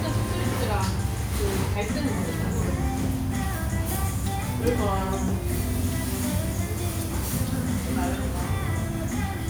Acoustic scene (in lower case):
restaurant